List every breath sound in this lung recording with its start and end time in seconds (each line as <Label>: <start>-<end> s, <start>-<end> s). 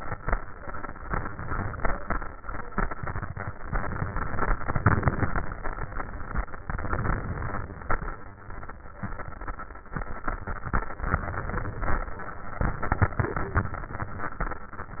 Inhalation: 3.68-4.59 s, 6.69-7.60 s, 11.12-12.03 s